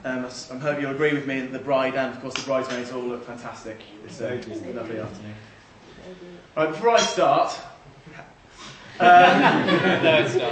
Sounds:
man speaking, monologue, speech

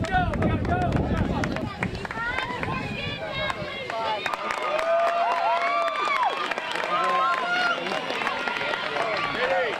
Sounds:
run, speech

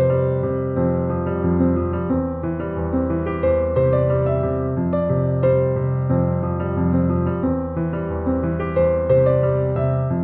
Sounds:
traditional music, music

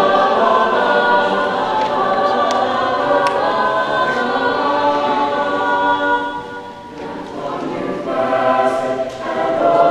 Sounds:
music

